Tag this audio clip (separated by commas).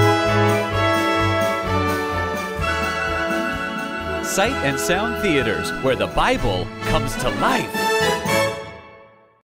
Music, Speech